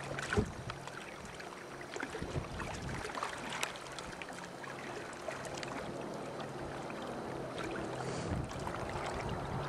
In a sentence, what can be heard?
Water and sound of bumping into a boat or wood structure